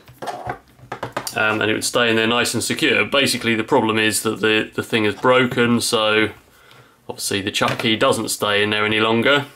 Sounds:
Speech

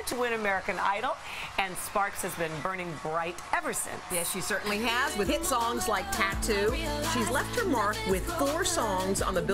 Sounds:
Speech, Music

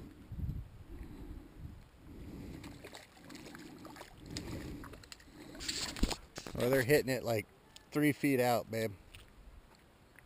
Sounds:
Speech

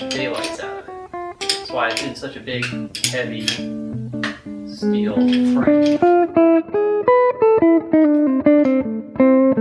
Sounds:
Speech, Music, Guitar, inside a small room, Electronic tuner

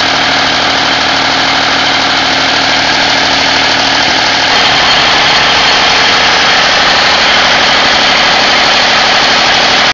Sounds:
Idling, Engine

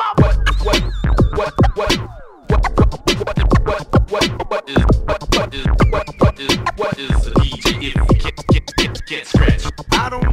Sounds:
Scratching (performance technique), Music

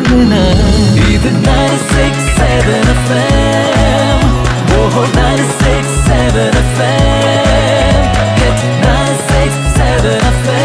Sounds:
Music

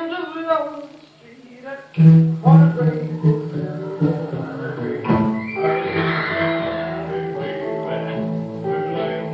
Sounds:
Music, Television

